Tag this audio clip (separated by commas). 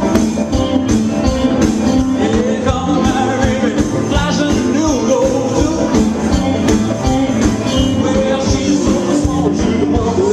Music of Latin America, Rattle (instrument), Music